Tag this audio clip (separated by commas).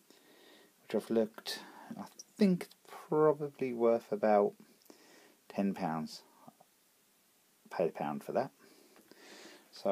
Speech